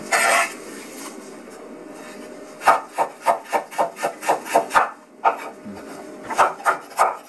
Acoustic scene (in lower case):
kitchen